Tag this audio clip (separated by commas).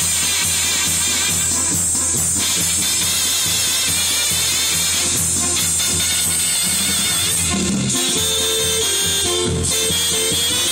Music